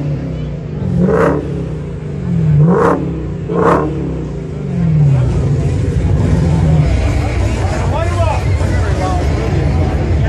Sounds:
speech, music

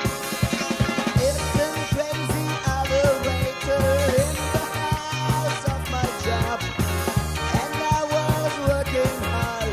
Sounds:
music, ska

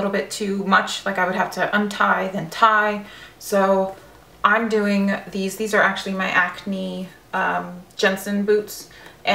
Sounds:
speech

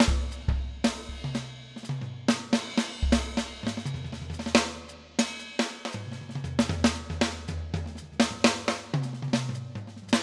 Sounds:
snare drum, bass drum, playing drum kit, rimshot, percussion, drum kit, drum roll, drum

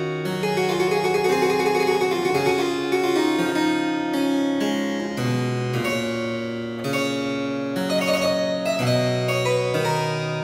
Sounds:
playing harpsichord

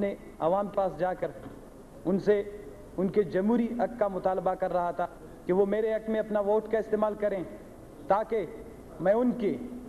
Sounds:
man speaking, monologue, speech

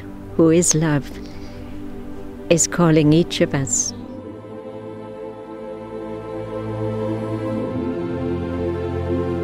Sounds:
woman speaking, music, speech, new-age music

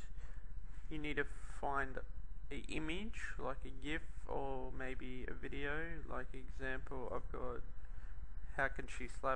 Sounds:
speech

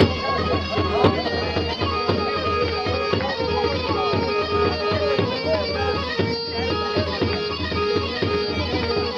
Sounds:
speech, music

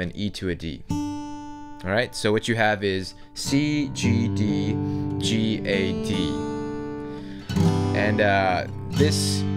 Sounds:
music, speech, acoustic guitar

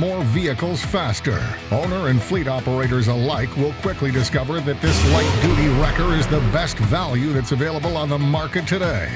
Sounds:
music, speech

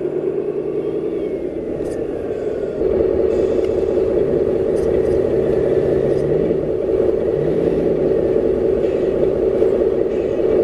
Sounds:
truck, vehicle

